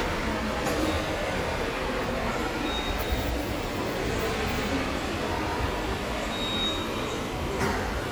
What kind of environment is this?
subway station